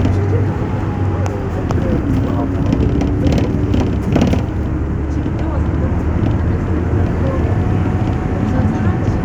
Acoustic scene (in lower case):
bus